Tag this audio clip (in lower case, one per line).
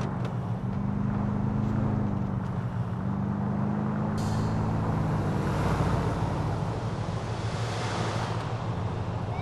vehicle
car passing by
car
police car (siren)
motor vehicle (road)